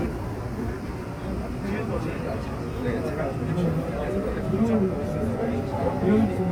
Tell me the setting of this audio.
subway train